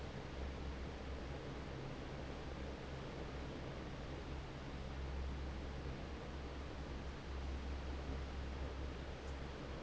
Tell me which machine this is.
fan